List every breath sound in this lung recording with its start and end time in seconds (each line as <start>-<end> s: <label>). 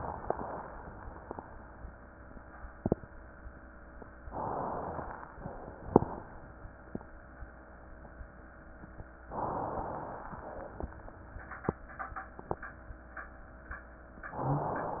4.29-5.33 s: inhalation
4.29-5.33 s: crackles
5.37-6.60 s: exhalation
9.33-10.29 s: inhalation
10.29-11.41 s: exhalation